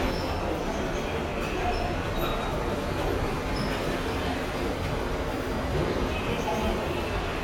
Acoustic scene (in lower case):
subway station